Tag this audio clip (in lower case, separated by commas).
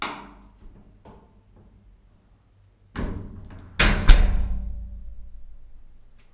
home sounds, slam, door